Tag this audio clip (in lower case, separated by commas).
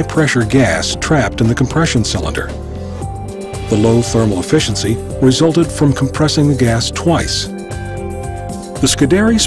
speech, music